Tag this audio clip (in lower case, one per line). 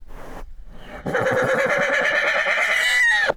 animal
livestock